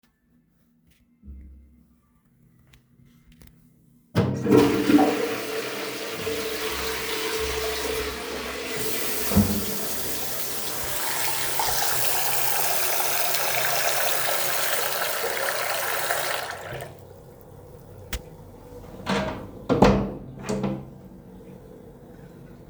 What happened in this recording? I flush the toilet, immediately turn on the sink faucet and run water to wash my hands before the toilet is done flushing, then open and close the bathroom window for fresh air.